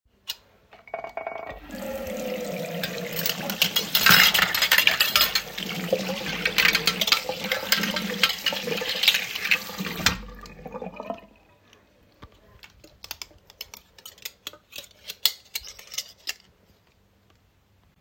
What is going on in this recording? Running water while washing dishes and handling cutlery.